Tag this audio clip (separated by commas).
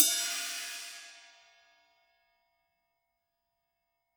Percussion, Musical instrument, Hi-hat, Cymbal, Music